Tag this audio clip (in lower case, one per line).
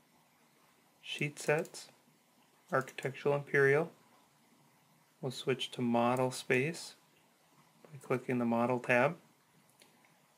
speech